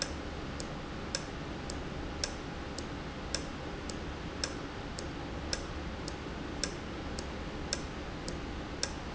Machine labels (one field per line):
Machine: valve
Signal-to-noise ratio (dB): -6 dB